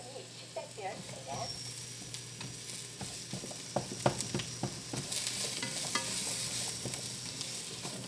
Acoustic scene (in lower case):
kitchen